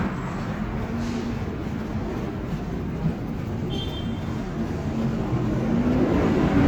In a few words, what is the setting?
street